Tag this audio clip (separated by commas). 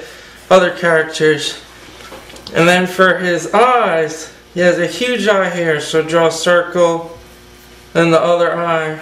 Speech